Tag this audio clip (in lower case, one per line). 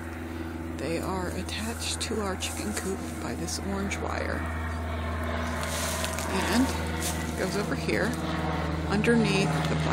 speech